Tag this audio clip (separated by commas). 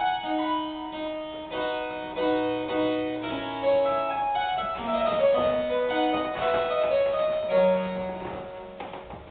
Piano, Keyboard (musical)